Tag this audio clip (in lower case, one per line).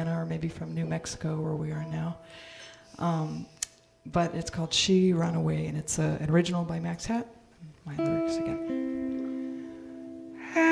speech
music